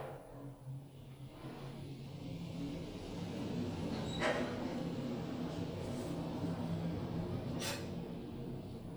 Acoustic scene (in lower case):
elevator